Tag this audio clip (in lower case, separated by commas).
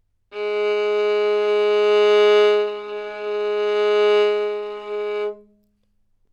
musical instrument, bowed string instrument, music